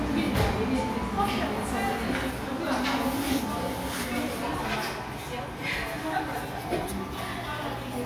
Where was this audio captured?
in a cafe